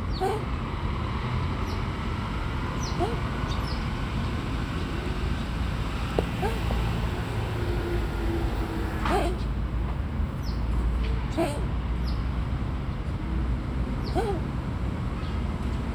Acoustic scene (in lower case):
residential area